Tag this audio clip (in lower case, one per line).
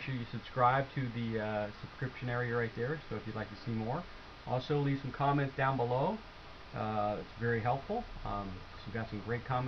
speech